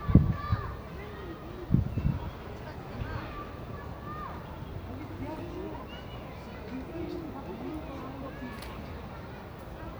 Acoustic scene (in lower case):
residential area